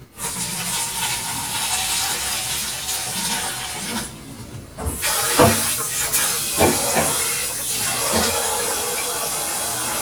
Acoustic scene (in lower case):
kitchen